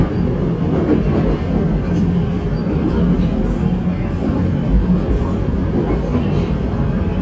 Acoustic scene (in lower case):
subway train